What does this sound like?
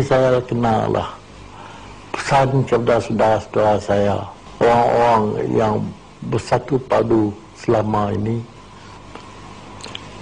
A man gives a speech